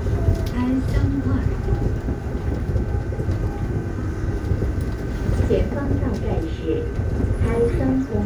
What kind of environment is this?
subway train